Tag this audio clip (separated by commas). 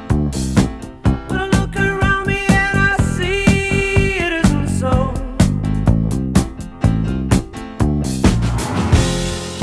Music